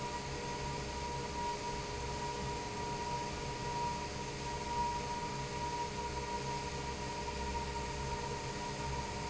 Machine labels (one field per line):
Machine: fan